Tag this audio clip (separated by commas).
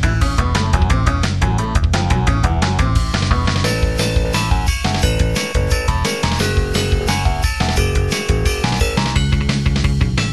Music